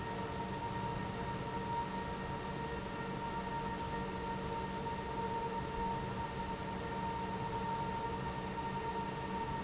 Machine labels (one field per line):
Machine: pump